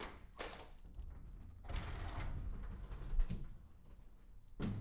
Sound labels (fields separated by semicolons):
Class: door; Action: opening; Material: metal